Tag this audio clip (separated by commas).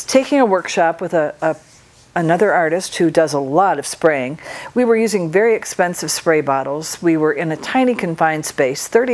Spray, Speech